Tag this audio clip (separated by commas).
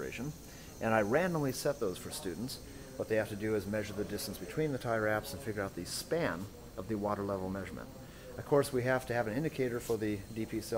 Speech